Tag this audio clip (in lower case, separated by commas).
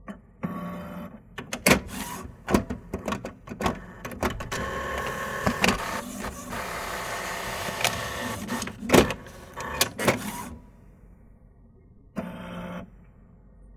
printer, mechanisms